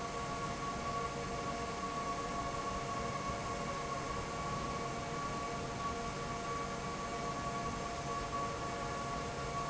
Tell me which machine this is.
fan